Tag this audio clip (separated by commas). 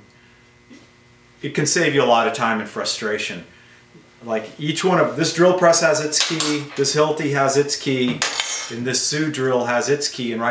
Speech